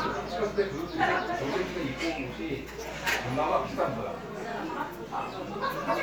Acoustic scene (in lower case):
crowded indoor space